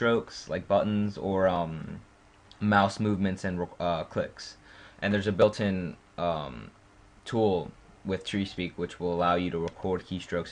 A person speaking